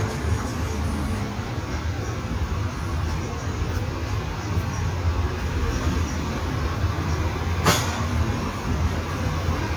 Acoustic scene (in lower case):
street